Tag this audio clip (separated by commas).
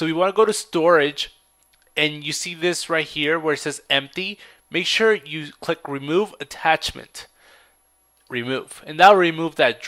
Speech